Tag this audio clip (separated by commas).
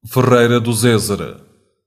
Human voice